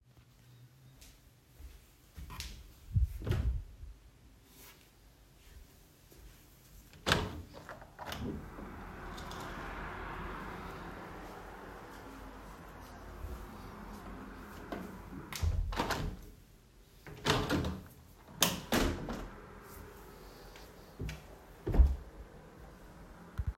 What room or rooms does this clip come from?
bedroom